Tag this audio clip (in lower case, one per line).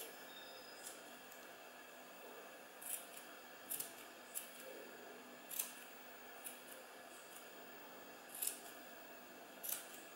inside a small room